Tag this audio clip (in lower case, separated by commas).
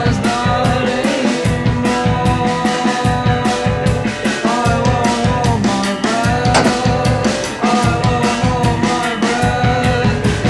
independent music, vehicle